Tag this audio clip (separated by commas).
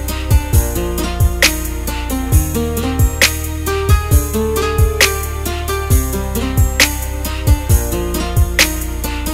Guitar, Strum, Musical instrument, Plucked string instrument, Music